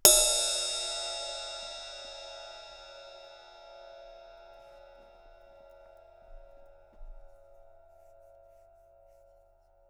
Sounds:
cymbal, music, musical instrument, percussion, crash cymbal

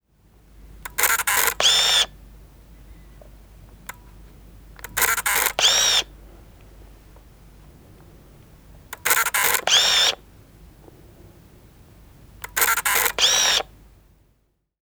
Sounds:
camera, mechanisms

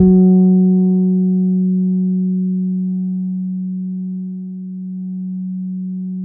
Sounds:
bass guitar, musical instrument, plucked string instrument, guitar, music

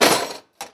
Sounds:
tools

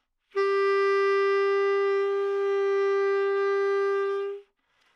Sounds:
wind instrument, music, musical instrument

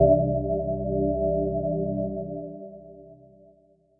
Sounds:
music, keyboard (musical), organ, musical instrument

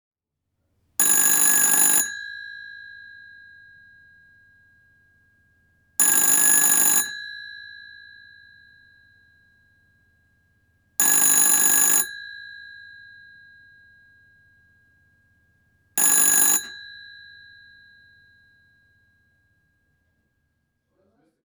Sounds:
telephone, alarm

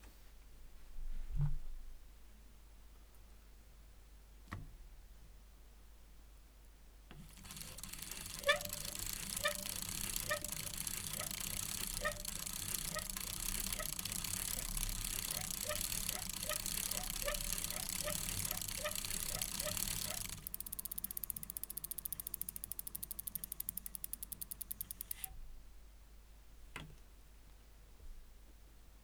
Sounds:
vehicle, bicycle

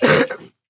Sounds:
cough, respiratory sounds

